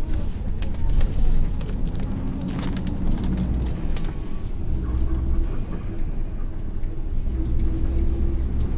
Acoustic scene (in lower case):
bus